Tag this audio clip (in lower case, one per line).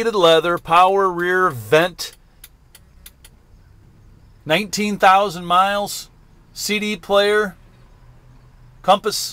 speech